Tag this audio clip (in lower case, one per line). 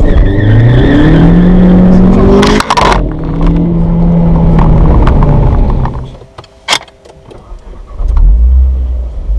vehicle
car
outside, urban or man-made